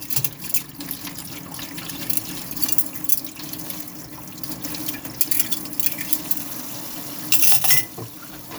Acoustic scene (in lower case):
kitchen